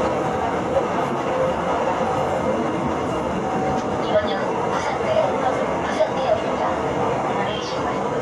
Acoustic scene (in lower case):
subway train